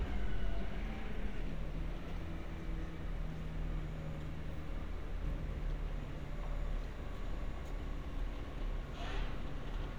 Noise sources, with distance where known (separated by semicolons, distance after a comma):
background noise